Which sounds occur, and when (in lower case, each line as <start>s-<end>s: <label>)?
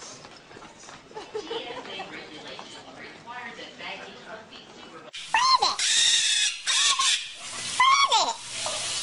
0.0s-9.0s: mechanisms
0.2s-1.2s: walk
1.1s-5.1s: woman speaking
5.3s-5.8s: human sounds
5.7s-6.5s: bird song
6.7s-7.2s: bird song
6.7s-7.1s: human sounds
7.7s-8.4s: human sounds
8.5s-8.9s: human sounds